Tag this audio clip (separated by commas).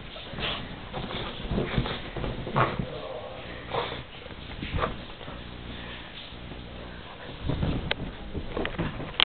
Dog, pets, Yip, Animal, Bow-wow